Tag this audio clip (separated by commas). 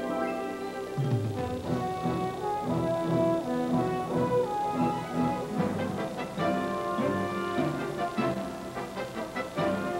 Music